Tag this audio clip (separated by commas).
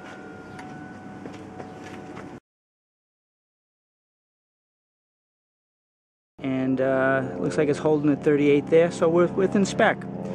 Music, Speech